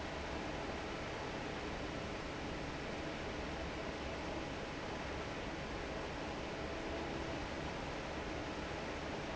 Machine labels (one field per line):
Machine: fan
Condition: normal